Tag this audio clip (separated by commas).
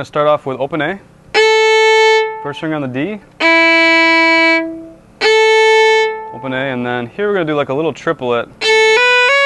Speech, Musical instrument, Violin, Music